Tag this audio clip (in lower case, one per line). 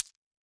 glass